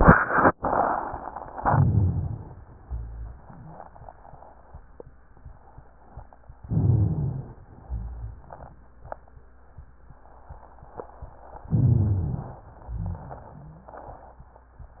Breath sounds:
Inhalation: 1.58-2.58 s, 6.66-7.65 s, 11.71-12.71 s
Exhalation: 2.79-4.16 s, 7.63-9.00 s, 12.72-14.42 s
Wheeze: 3.47-3.91 s, 13.50-13.91 s
Rhonchi: 1.57-2.56 s, 2.87-3.34 s, 6.66-7.65 s, 7.86-8.45 s, 11.71-12.71 s, 12.83-13.39 s

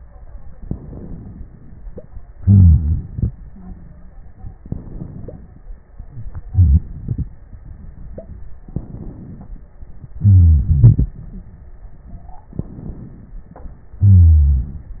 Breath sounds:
Inhalation: 0.56-2.31 s, 4.63-6.44 s, 8.73-9.67 s, 12.51-13.55 s
Exhalation: 2.36-4.59 s, 6.47-7.51 s, 10.18-11.73 s, 14.02-15.00 s
Wheeze: 2.36-3.07 s, 10.18-10.88 s, 14.02-15.00 s
Stridor: 3.46-4.14 s
Crackles: 6.47-7.51 s

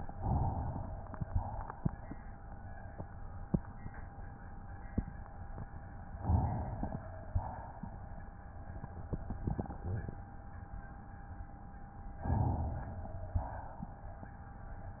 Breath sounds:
Inhalation: 0.13-1.18 s, 6.21-7.02 s, 12.24-13.36 s
Exhalation: 1.18-1.99 s, 7.02-8.22 s, 13.36-14.40 s

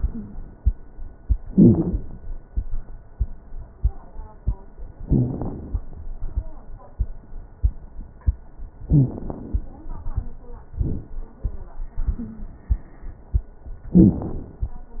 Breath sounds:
Wheeze: 0.06-0.40 s, 1.46-1.95 s, 5.03-5.38 s, 8.87-9.16 s, 12.19-12.58 s

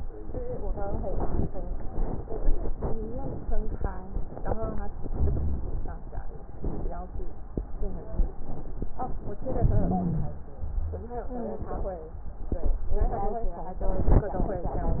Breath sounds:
Inhalation: 5.08-5.90 s, 9.49-10.32 s
Wheeze: 9.78-10.32 s, 11.32-11.68 s

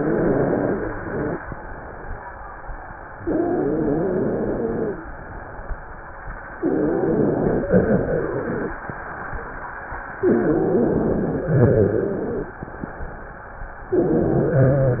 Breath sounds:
Inhalation: 0.00-1.40 s, 3.23-5.12 s, 6.60-8.82 s, 10.17-12.56 s, 13.89-15.00 s
Wheeze: 0.00-1.40 s, 3.23-5.12 s, 6.60-8.82 s, 10.17-12.56 s, 13.89-15.00 s

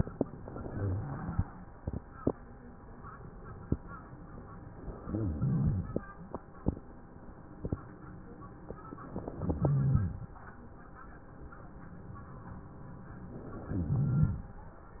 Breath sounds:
Inhalation: 0.36-1.59 s, 4.75-6.18 s, 8.86-10.29 s, 13.39-14.82 s
Wheeze: 0.36-1.59 s, 4.75-6.18 s, 8.86-10.29 s, 13.39-14.82 s

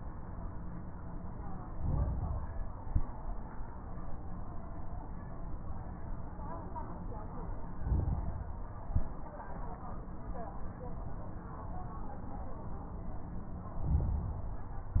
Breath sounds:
Inhalation: 1.61-2.71 s, 7.66-8.76 s, 13.78-14.88 s
Exhalation: 2.73-3.19 s, 8.80-9.25 s
Crackles: 1.61-2.71 s, 2.73-3.19 s, 7.66-8.76 s, 8.80-9.25 s, 13.78-14.88 s

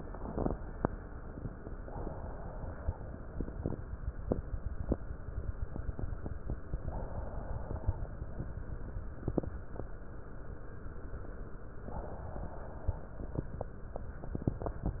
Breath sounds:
Inhalation: 1.71-3.29 s, 6.79-8.15 s, 11.87-13.23 s

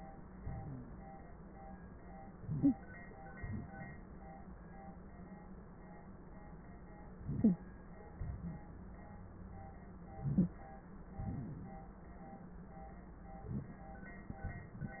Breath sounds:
Inhalation: 2.37-2.83 s, 7.13-7.67 s, 10.11-10.63 s
Exhalation: 3.44-4.14 s, 8.18-8.84 s, 11.20-11.84 s
Wheeze: 7.41-7.57 s, 10.23-10.50 s
Stridor: 2.63-2.74 s

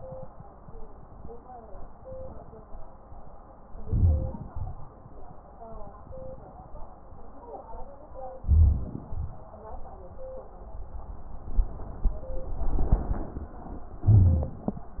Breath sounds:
Inhalation: 3.80-4.49 s, 8.42-8.95 s, 14.02-14.56 s
Exhalation: 4.50-4.90 s, 9.09-9.46 s
Crackles: 4.50-4.90 s, 8.41-8.95 s, 14.02-14.56 s

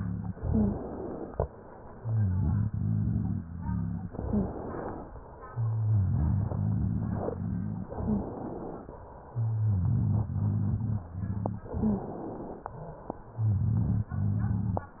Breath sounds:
Inhalation: 0.30-1.41 s, 4.13-5.08 s, 7.94-8.97 s, 11.75-12.74 s
Exhalation: 1.43-4.09 s, 5.22-7.88 s, 9.01-11.67 s, 12.80-15.00 s
Rhonchi: 0.32-0.85 s, 1.89-4.09 s, 4.11-4.54 s, 5.50-7.84 s, 7.92-8.35 s, 9.31-11.65 s, 11.71-12.14 s, 13.30-15.00 s

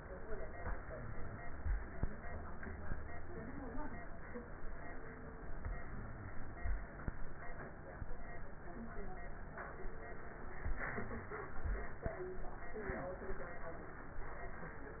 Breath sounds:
Inhalation: 0.55-1.76 s, 9.54-10.75 s
Exhalation: 10.79-12.31 s

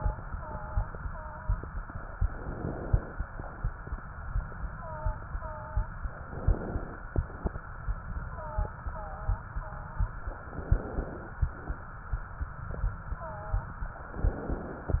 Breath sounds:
Inhalation: 2.23-3.21 s, 6.12-7.03 s, 10.34-11.24 s, 14.07-14.98 s

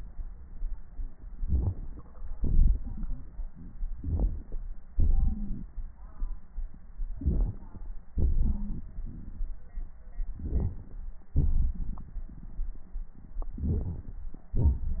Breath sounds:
Inhalation: 1.39-2.26 s, 3.97-4.59 s, 7.13-7.96 s, 10.39-11.03 s, 13.58-14.25 s
Exhalation: 2.35-3.51 s, 4.97-5.67 s, 8.16-9.57 s, 11.40-12.66 s
Wheeze: 5.09-5.53 s, 8.44-8.73 s
Crackles: 1.39-2.26 s, 2.35-3.51 s, 3.97-4.59 s, 4.97-5.67 s, 7.13-7.96 s, 10.39-11.03 s, 11.40-12.66 s, 13.58-14.25 s

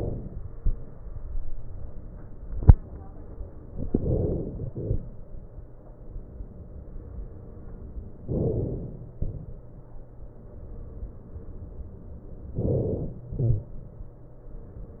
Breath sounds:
Inhalation: 3.92-4.69 s, 8.24-9.16 s, 12.57-13.33 s
Exhalation: 4.69-6.38 s, 13.33-14.70 s

